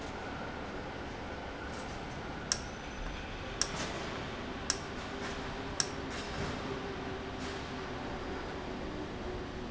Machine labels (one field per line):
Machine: valve